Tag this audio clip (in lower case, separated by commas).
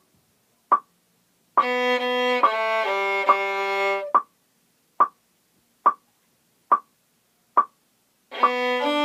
music, musical instrument, violin